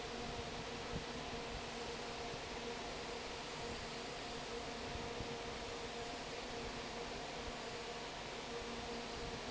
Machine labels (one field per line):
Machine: fan